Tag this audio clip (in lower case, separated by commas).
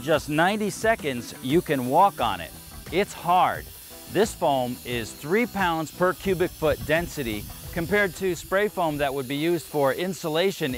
music, spray, speech